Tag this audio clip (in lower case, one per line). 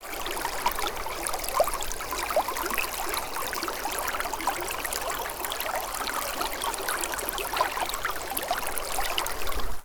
stream
water